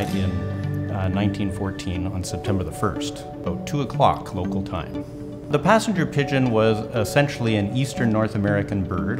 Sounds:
Music, Speech

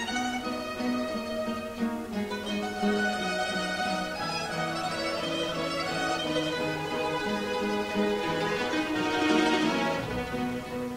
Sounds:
Music, Mandolin

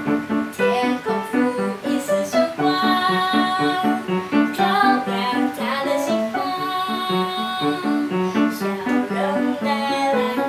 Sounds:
Music, Tender music

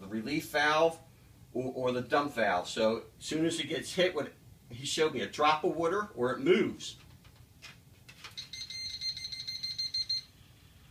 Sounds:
Speech

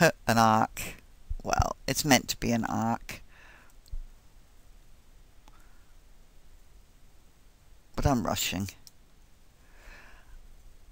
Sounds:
Speech, Clicking

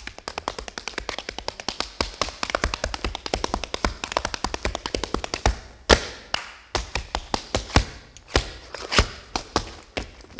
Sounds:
tap dancing

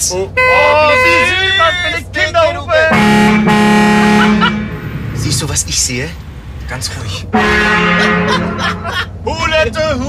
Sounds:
honking

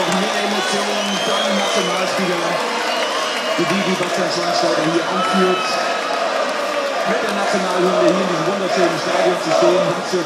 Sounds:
people cheering

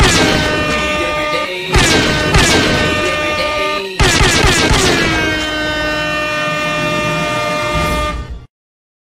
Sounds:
Music

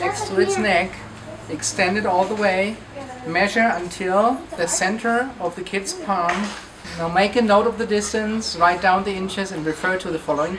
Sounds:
Speech

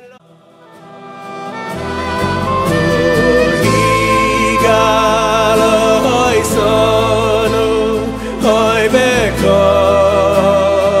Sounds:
Music

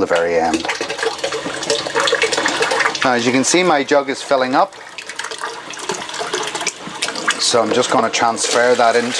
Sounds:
Water, Water tap, Sink (filling or washing)

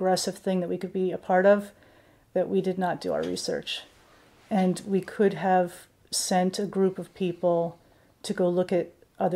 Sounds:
Speech

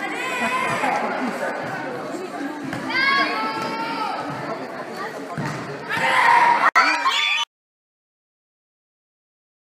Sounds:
playing volleyball

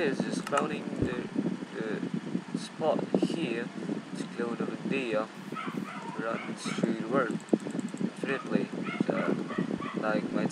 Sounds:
Speech

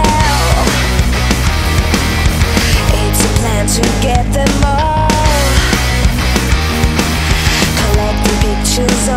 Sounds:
Music

